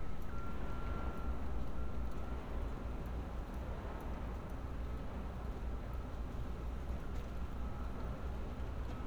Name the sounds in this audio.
reverse beeper